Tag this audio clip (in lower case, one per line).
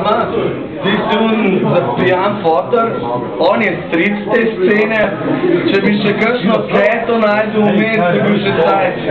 speech